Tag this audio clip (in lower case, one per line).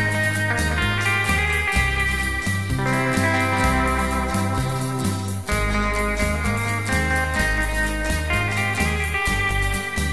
musical instrument
guitar
plucked string instrument
inside a small room
slide guitar
music